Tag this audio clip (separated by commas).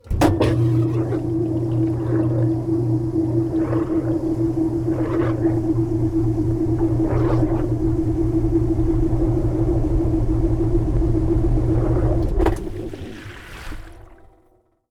Engine